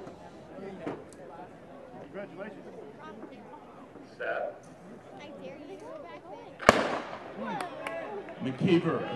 Several people talk then a gun is fired and a man talks on microphone